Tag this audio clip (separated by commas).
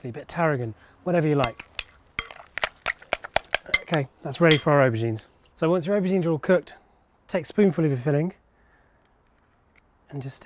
Speech